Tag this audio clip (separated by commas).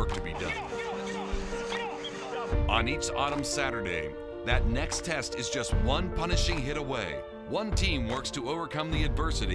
Music, Speech